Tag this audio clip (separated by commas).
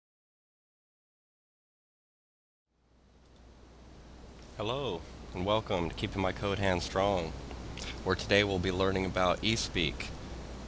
Speech